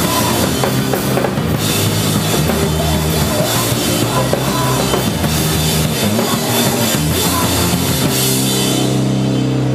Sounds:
music

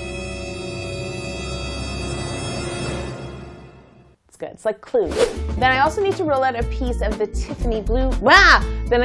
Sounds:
speech
music

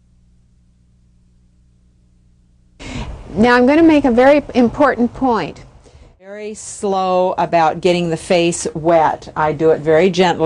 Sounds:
speech

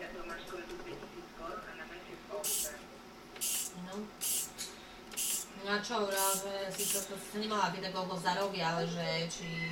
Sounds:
speech

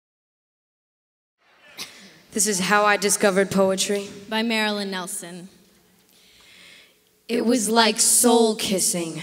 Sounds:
speech
inside a large room or hall

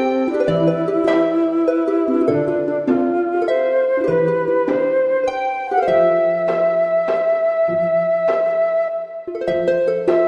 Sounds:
harp
music

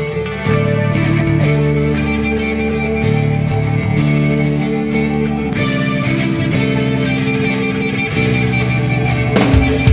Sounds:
progressive rock
music

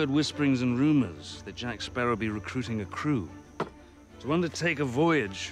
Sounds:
music
speech

